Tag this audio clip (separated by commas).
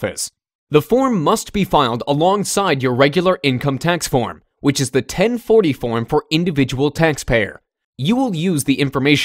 Speech